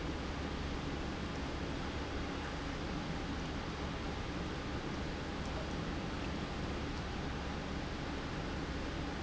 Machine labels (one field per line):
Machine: pump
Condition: normal